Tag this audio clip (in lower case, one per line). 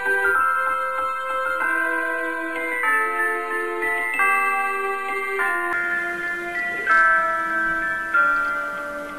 jingle (music)
music